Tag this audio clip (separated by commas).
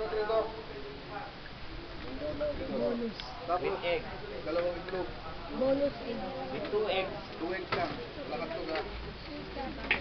Speech